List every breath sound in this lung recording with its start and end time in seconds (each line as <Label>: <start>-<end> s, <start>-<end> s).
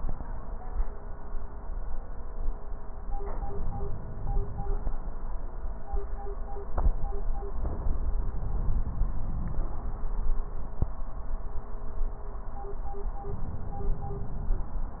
Inhalation: 3.18-4.83 s